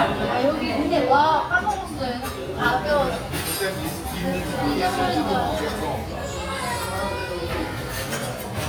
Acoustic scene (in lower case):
restaurant